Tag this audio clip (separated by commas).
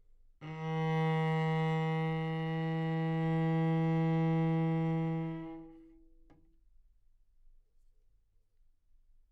Music, Bowed string instrument, Musical instrument